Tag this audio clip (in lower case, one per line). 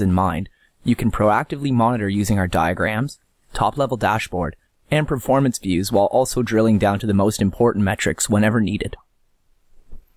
speech